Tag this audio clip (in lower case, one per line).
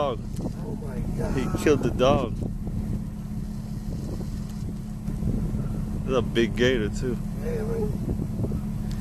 speech